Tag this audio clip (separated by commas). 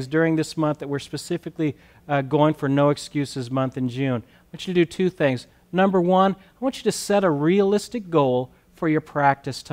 Speech